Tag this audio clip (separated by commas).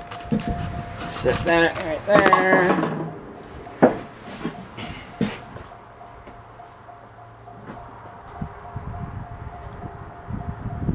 Speech